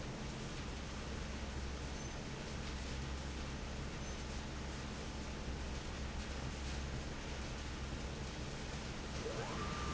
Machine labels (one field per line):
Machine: fan